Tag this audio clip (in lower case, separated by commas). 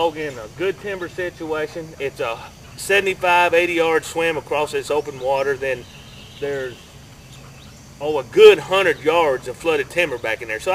speech